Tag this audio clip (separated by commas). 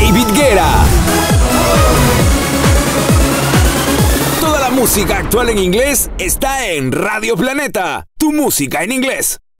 Speech, Music